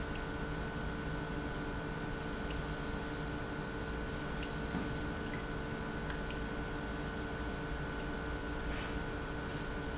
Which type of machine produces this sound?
pump